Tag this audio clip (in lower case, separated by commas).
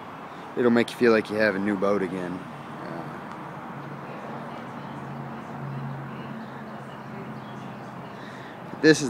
speech